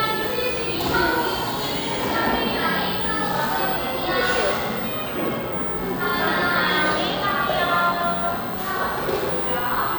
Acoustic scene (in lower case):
cafe